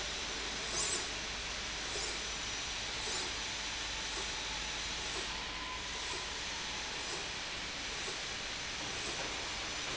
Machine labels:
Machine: slide rail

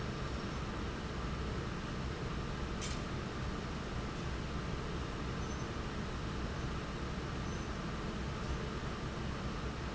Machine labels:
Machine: fan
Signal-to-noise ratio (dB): -6 dB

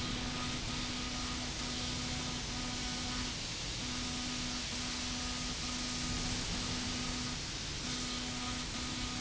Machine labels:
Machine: slide rail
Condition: abnormal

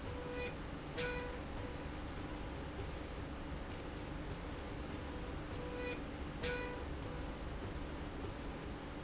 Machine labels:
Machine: slide rail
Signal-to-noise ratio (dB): 0 dB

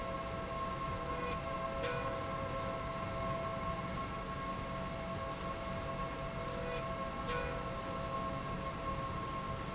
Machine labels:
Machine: slide rail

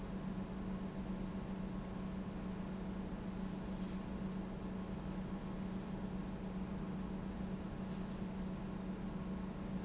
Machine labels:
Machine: pump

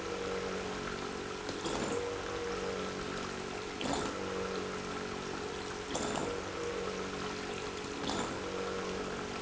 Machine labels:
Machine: pump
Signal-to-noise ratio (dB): 6 dB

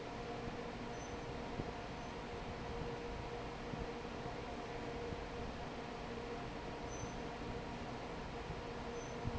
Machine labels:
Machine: fan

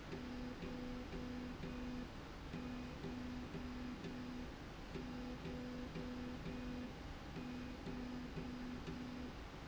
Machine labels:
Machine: slide rail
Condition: normal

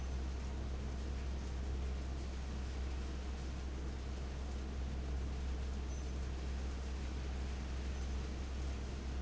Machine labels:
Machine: fan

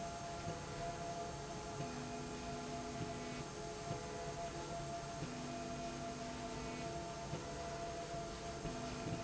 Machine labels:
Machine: slide rail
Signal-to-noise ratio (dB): 0 dB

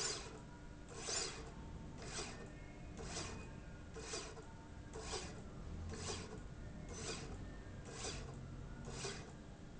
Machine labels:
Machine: slide rail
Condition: normal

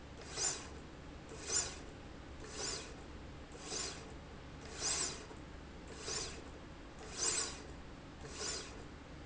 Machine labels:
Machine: slide rail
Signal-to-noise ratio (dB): 6 dB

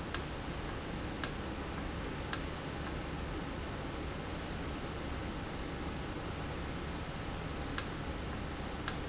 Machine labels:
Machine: valve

